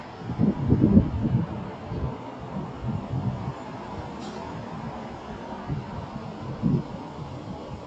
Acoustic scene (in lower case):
street